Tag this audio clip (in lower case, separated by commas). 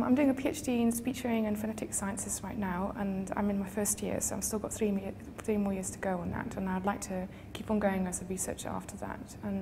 female speech, speech